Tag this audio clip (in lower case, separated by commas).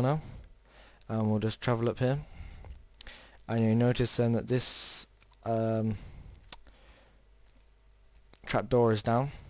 speech